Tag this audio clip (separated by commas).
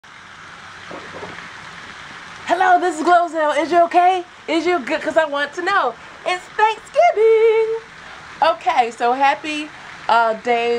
Speech